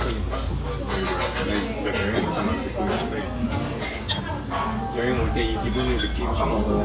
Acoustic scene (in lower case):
restaurant